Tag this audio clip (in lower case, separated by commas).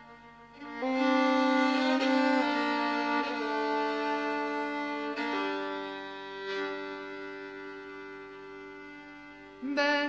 music